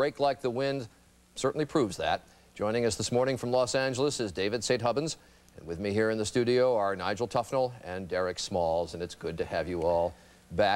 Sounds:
Speech

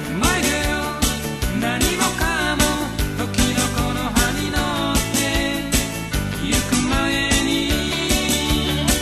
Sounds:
Music

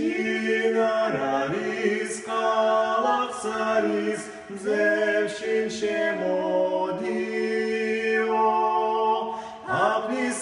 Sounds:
Lullaby

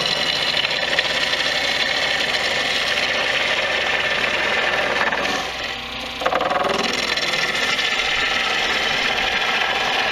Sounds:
lathe spinning

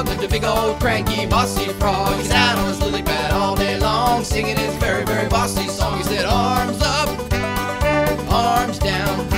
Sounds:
Music

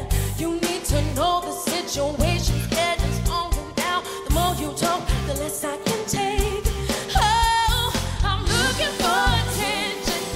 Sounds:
Music

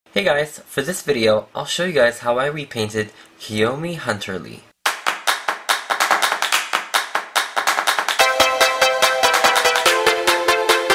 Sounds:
Music, Speech

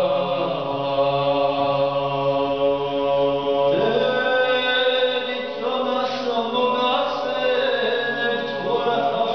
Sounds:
Male singing

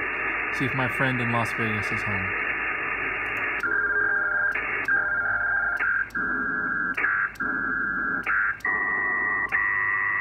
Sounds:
Speech, Radio

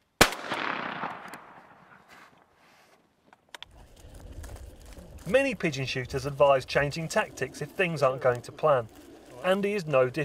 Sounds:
dove

